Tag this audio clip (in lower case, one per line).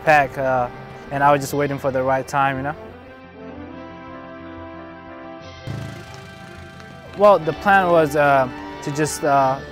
run
speech
music